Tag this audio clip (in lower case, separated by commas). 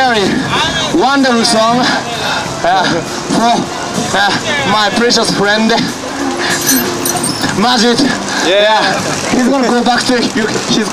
music, speech